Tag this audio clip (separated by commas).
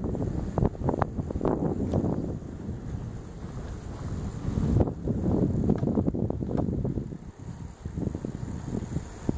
Bicycle, Vehicle